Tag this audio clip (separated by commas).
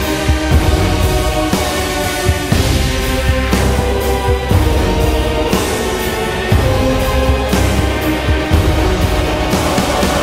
Theme music, Music